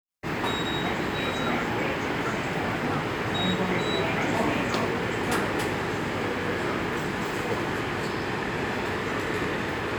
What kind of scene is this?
subway station